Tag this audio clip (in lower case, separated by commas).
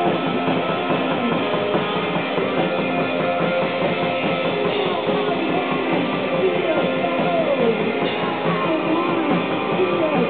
music